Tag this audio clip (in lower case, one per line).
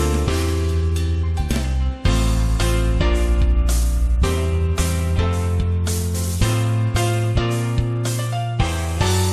music